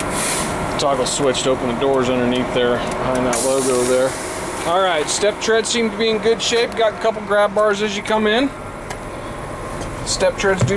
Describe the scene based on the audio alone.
An adult male speaks as a vehicle engine runs